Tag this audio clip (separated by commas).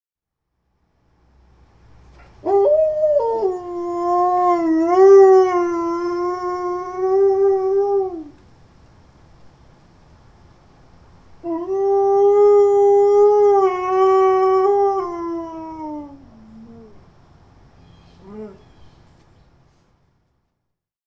Dog, Domestic animals, Animal